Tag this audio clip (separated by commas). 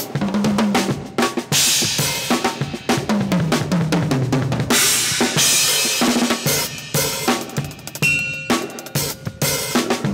Music, Percussion